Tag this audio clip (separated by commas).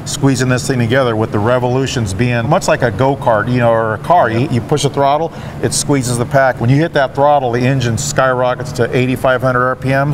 Vehicle, Speech